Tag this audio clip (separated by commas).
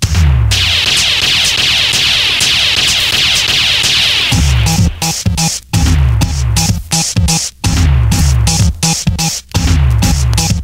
House music, Music, Techno